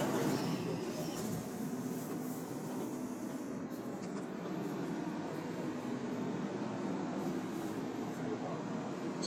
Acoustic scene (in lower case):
subway train